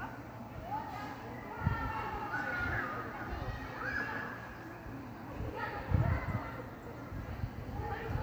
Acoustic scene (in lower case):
park